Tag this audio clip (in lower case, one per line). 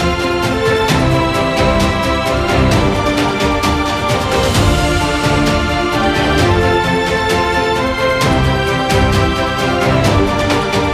theme music
music